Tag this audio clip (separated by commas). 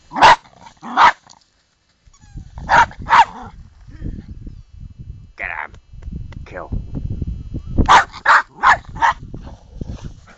Whimper (dog), Animal, Dog, Speech, Bow-wow, pets